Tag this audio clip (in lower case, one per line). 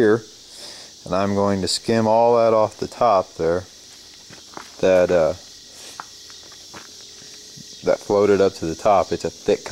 speech
footsteps
outside, urban or man-made